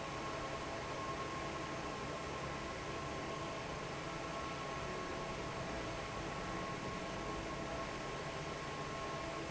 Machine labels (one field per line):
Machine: fan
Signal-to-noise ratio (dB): 0 dB